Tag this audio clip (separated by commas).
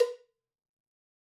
Cowbell, Bell